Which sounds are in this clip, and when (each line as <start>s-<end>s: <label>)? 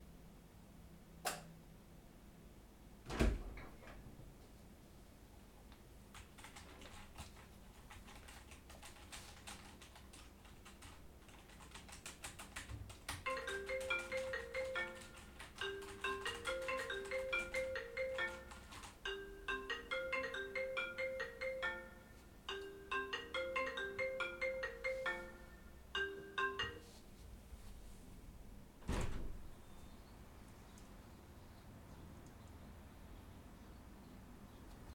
1.2s-1.4s: light switch
2.9s-4.0s: door
6.1s-18.9s: keyboard typing
13.3s-26.8s: phone ringing